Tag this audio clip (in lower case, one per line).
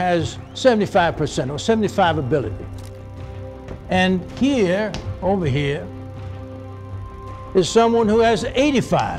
music
speech
man speaking